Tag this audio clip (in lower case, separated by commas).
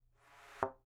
thud